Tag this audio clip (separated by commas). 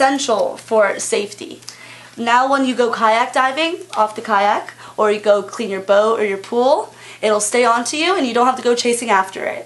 Speech